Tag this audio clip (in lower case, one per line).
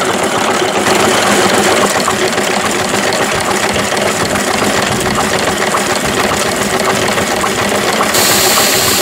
medium engine (mid frequency)
engine
idling
vehicle